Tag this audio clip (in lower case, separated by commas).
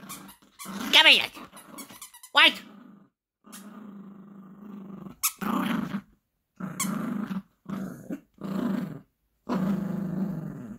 dog growling